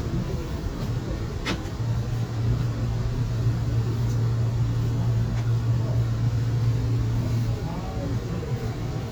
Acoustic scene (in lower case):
subway train